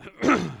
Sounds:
Cough, Respiratory sounds

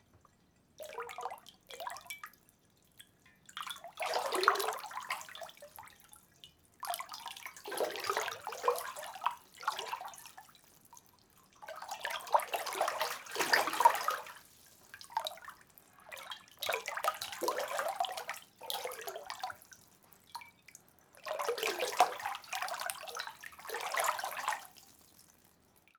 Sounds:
Breathing, Respiratory sounds, home sounds, Pour, Liquid, splatter, Trickle, Drip, Bathtub (filling or washing)

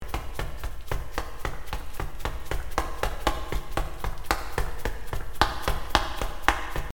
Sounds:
Run

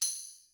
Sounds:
Musical instrument, Percussion, Tambourine, Music

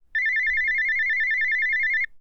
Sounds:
Telephone, Alarm

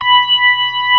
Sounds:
Musical instrument, Keyboard (musical), Organ, Music

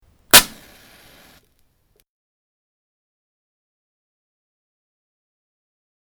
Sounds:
Fire

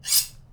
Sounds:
home sounds, silverware

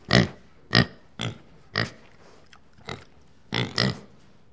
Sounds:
livestock, Animal

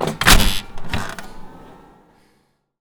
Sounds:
Mechanisms

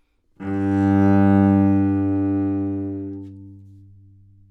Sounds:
Music, Musical instrument, Bowed string instrument

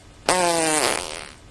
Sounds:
Fart

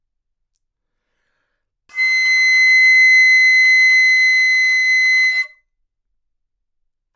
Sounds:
woodwind instrument, Musical instrument, Music

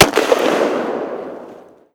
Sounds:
gunfire, Explosion

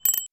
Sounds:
Alarm, Bicycle, Bell, Vehicle, Bicycle bell

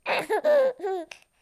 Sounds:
Laughter, Human voice

